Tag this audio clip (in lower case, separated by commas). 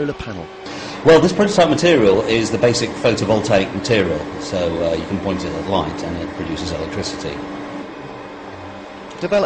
speech